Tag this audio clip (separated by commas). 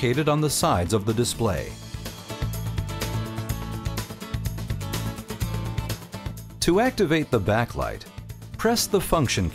Music, Speech